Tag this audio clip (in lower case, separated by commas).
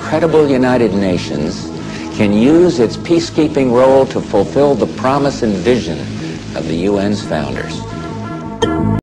speech, music, man speaking